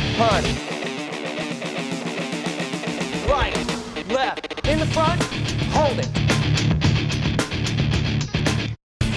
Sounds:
music, speech

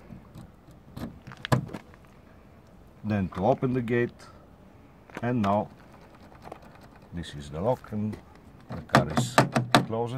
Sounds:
speech

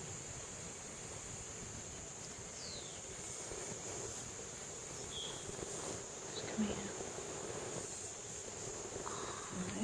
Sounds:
speech

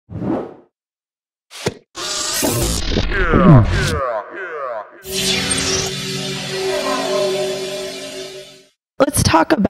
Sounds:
speech, inside a small room

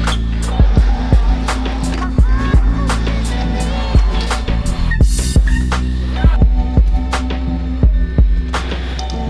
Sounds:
vehicle, music, bicycle, speech

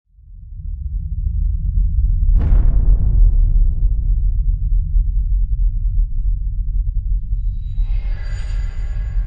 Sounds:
music

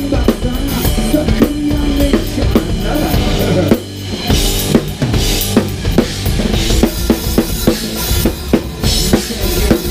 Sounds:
rimshot, drum kit, drum, snare drum, percussion, bass drum

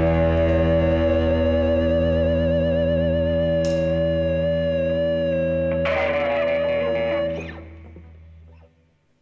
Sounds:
music, distortion, musical instrument

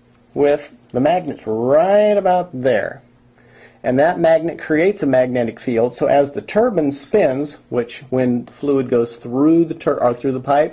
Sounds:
speech

